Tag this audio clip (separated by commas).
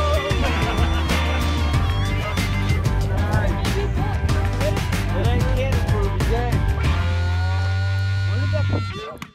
Music, Speech